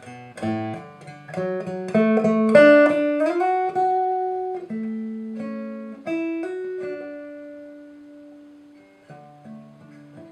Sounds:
Musical instrument, Guitar, Plucked string instrument, Music

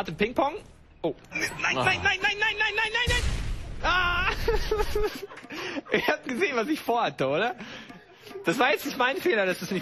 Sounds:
Speech, Music

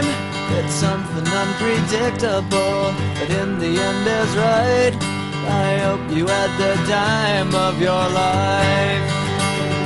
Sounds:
Music

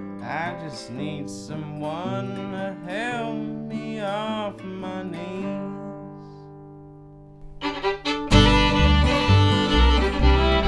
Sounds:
Blues, Music

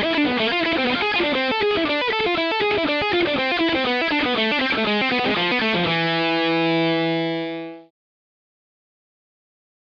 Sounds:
Musical instrument, Guitar, Electric guitar, Plucked string instrument, Music

